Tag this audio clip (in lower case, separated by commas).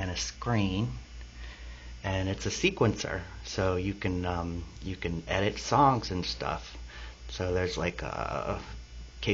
speech